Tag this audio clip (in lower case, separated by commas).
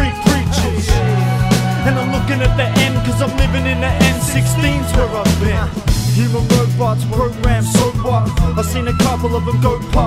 independent music, music